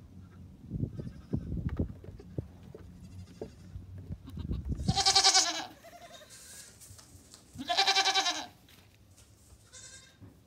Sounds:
goat bleating

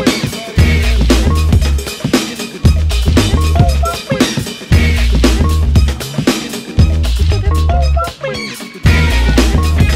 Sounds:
Music

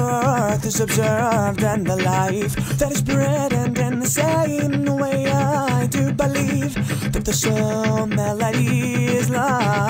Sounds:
Music

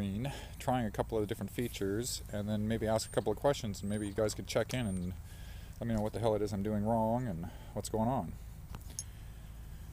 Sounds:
Tap, Speech

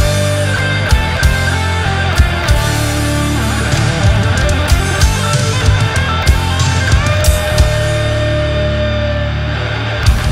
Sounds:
Music

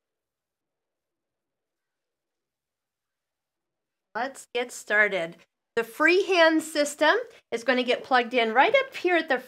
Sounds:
Speech

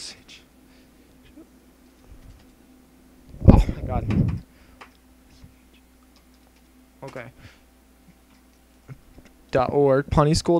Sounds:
Speech

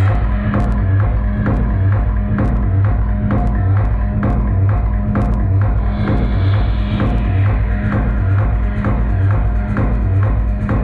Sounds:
Techno, Music, Electronic music

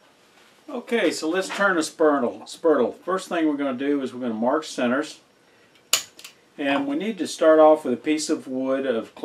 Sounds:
Tools, Speech

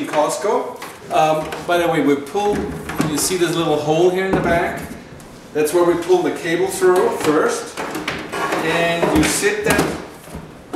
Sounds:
Speech

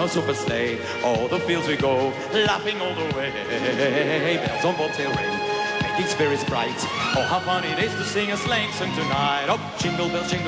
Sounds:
Speech, Music

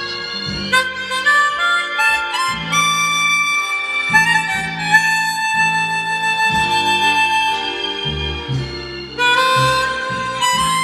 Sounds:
Music, Harmonica

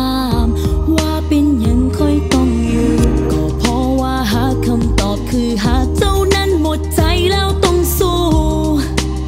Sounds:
Music

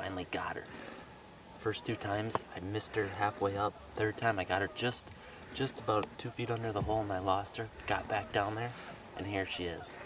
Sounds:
Speech

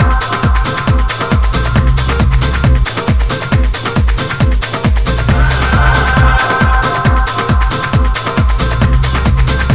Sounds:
Techno, Music

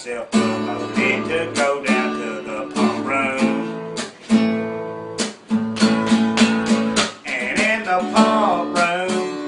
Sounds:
Music

